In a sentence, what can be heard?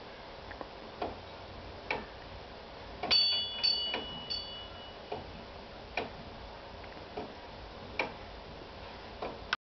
Ticking, ding, bell, ring, tapping